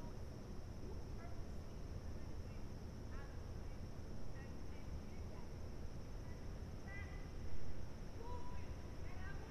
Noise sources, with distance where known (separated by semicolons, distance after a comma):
person or small group talking; person or small group shouting, far